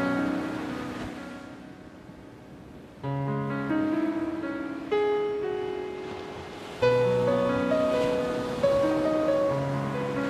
Piano playing over the sound of waves crashing against the shore